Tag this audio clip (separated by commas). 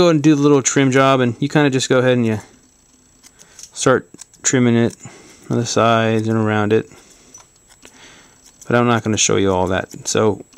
Speech